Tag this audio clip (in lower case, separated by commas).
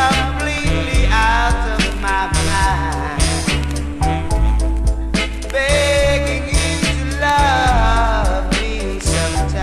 music